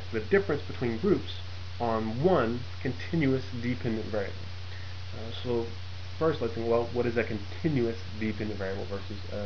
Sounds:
Narration, Speech

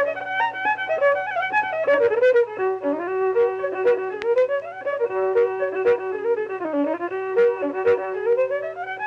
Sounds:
Music, Violin, Musical instrument

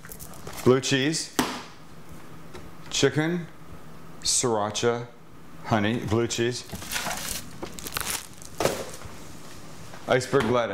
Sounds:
Speech

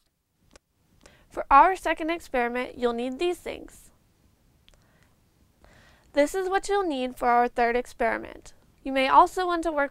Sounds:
Speech

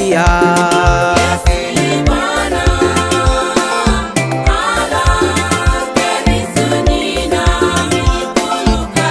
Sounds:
Music, Gospel music

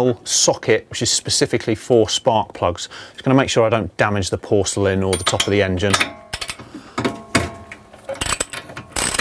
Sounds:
Speech

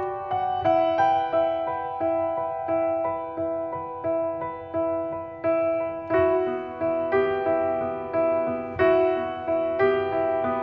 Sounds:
Music

